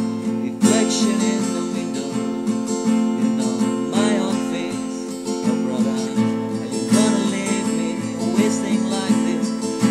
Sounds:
electric guitar, guitar, musical instrument, plucked string instrument, music

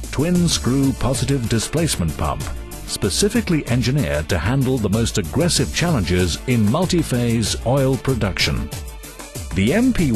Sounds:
speech, music

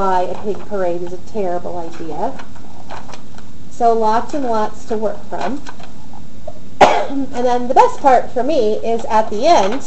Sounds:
speech

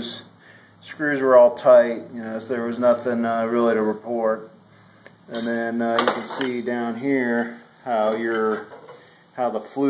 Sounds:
inside a small room, speech

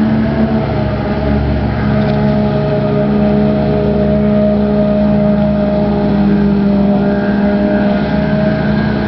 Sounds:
motorboat, vehicle, boat

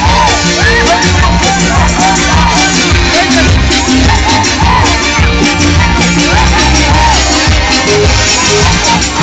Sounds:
music, dance music, harpsichord, speech

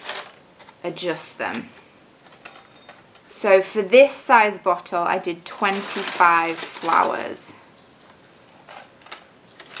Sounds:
speech, inside a small room

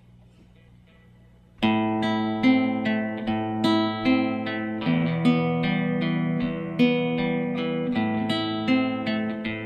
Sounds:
strum, music, musical instrument, plucked string instrument, guitar

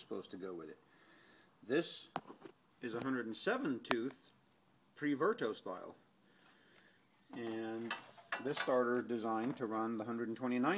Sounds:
speech

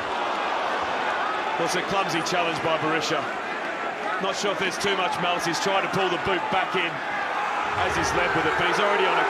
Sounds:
speech

